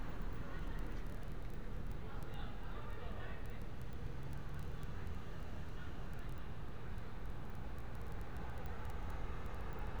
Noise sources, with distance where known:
person or small group talking, far

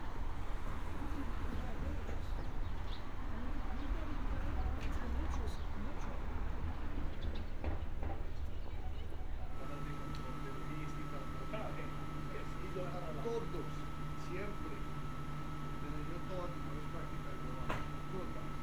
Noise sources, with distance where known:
person or small group talking

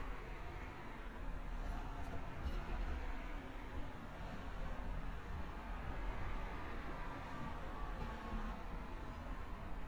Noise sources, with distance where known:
background noise

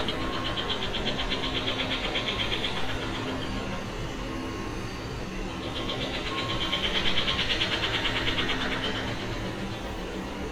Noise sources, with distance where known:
hoe ram

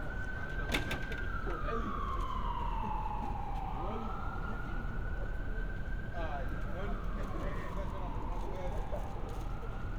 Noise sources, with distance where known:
siren, far; person or small group talking, near

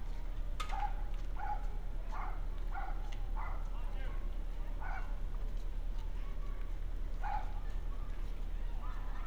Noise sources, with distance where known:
background noise

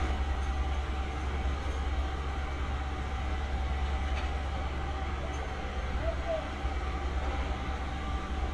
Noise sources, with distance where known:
engine of unclear size, near

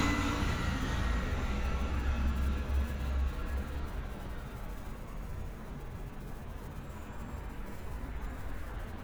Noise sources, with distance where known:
engine of unclear size

